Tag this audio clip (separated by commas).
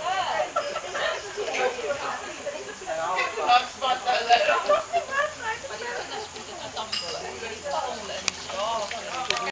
Speech